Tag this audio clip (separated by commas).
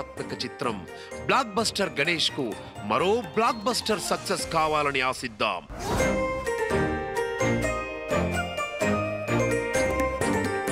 Music, Speech